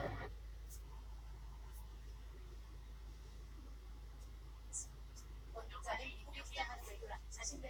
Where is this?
in a car